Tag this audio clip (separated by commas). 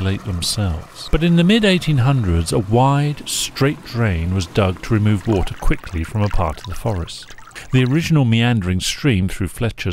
Speech, Stream